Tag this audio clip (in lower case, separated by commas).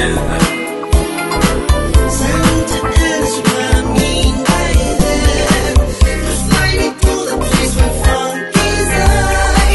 music, funk